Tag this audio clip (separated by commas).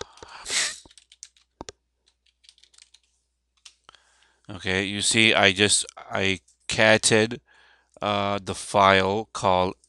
Typing